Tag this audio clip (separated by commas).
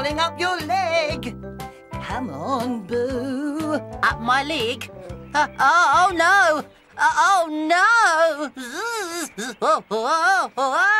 Music for children, Speech, Music